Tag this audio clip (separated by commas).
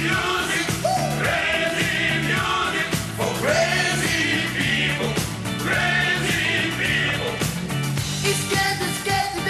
Music